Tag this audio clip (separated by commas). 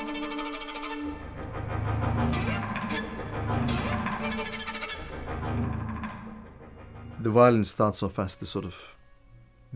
Speech, Violin, Music, Musical instrument